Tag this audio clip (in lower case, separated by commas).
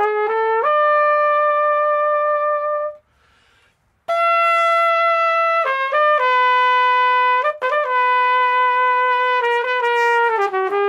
brass instrument, trumpet